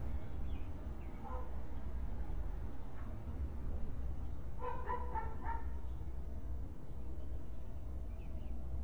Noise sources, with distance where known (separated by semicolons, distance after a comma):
dog barking or whining, far